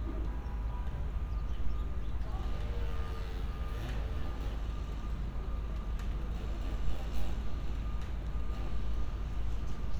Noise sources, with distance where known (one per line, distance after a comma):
unidentified powered saw
unidentified alert signal, far